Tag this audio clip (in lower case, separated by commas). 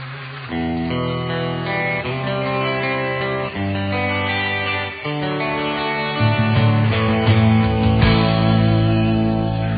strum, musical instrument, electric guitar, plucked string instrument, music